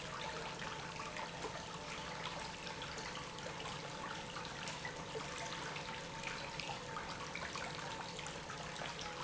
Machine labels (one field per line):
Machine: pump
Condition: normal